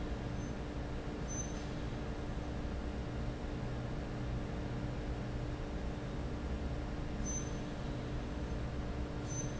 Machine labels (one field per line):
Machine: fan